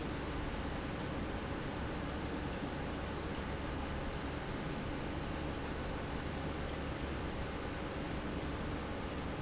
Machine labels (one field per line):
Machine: pump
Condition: normal